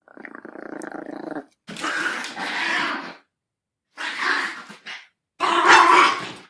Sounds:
animal, growling

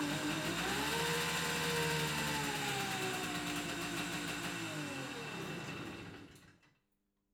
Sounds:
engine

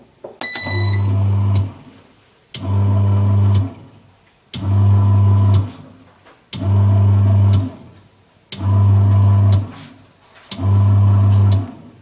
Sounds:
engine

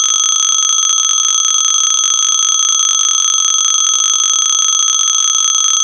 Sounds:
alarm, telephone

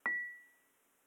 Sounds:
chink, glass, dishes, pots and pans, domestic sounds

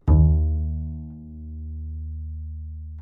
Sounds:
music, musical instrument, bowed string instrument

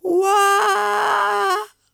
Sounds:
human voice, male singing, singing

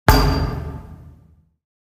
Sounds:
thud

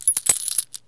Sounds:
coin (dropping), home sounds

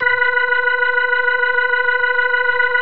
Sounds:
organ, music, keyboard (musical), musical instrument

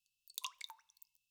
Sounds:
water, drip, pour, liquid, raindrop, rain, dribble

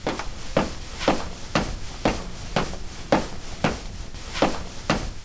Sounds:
footsteps

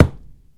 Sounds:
thump

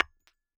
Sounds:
tap, glass

